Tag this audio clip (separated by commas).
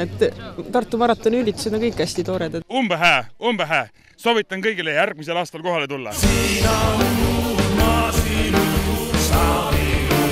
Speech, outside, rural or natural, Music